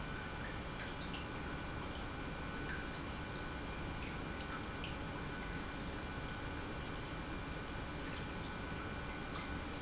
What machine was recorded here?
pump